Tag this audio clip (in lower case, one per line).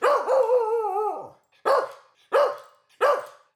bark
pets
animal
dog